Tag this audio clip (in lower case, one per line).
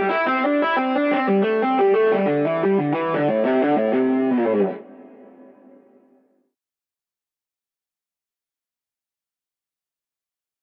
tapping guitar